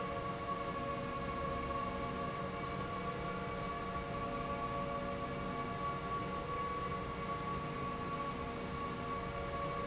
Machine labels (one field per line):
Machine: slide rail